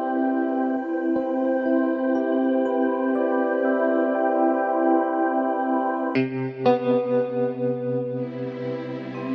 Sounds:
new-age music, music

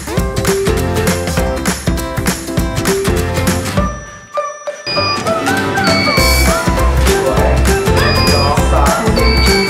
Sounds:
music, speech

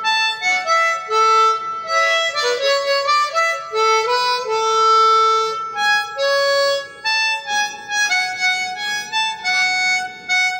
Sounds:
woodwind instrument, harmonica

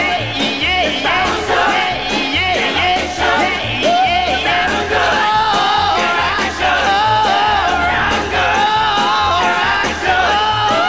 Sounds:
psychedelic rock, music

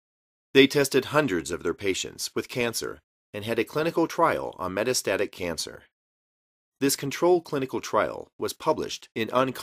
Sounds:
speech

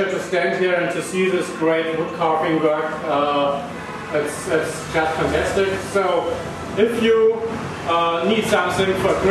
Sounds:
speech

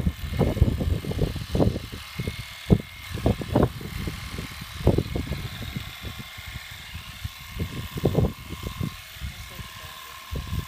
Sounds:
speech

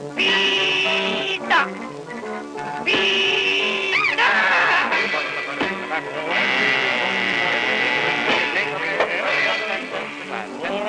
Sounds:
music, speech

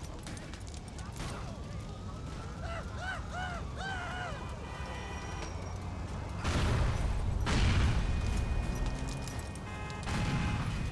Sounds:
vehicle, car, car passing by

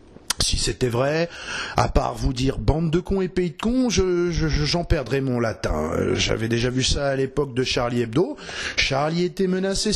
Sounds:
speech

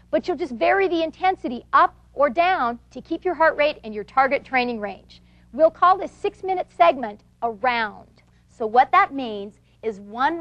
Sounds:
speech

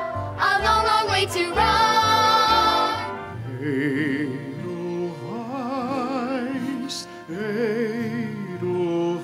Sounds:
music, tender music

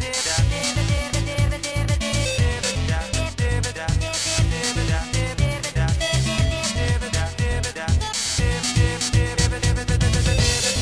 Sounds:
disco, music

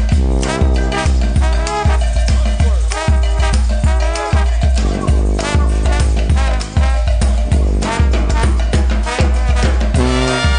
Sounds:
music, background music

